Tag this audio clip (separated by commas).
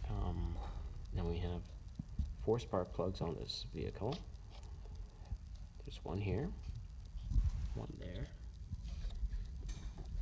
Speech